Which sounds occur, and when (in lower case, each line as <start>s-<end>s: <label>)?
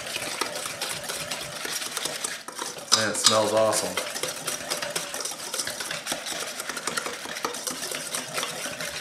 0.0s-9.0s: mechanisms
0.0s-9.0s: stir
2.9s-3.4s: silverware
2.9s-4.0s: man speaking